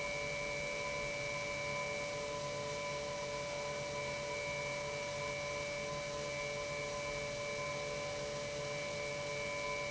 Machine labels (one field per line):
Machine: pump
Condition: normal